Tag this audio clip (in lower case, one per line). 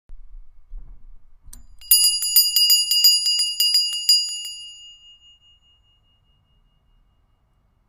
bell